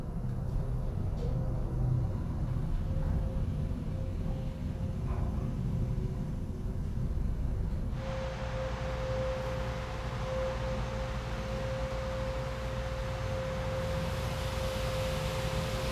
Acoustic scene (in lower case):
elevator